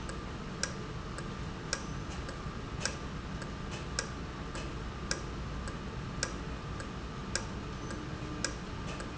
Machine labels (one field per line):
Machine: valve